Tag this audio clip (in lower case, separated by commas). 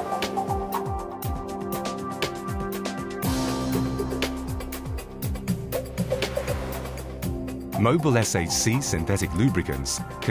music, speech